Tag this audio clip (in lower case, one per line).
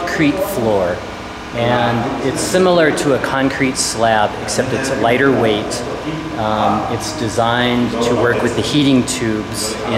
speech